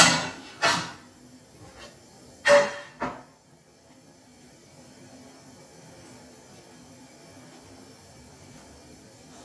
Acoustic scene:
kitchen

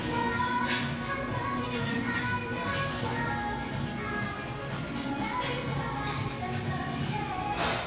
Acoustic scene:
crowded indoor space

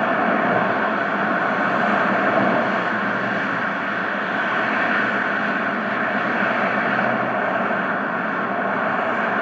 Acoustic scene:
street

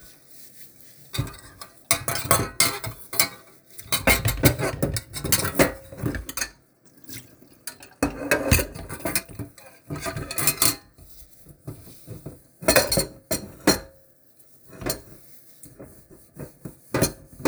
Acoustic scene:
kitchen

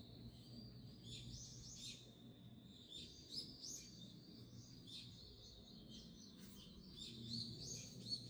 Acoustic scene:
park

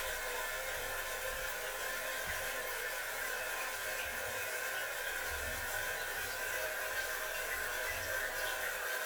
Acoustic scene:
restroom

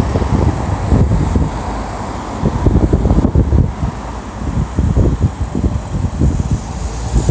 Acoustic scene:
street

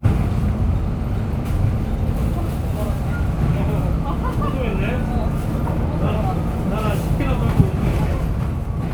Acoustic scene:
bus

